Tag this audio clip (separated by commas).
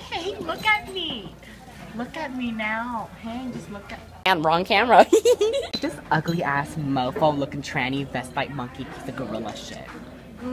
Speech, inside a public space